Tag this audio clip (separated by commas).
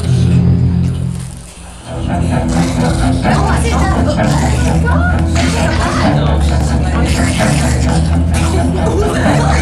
Music, Speech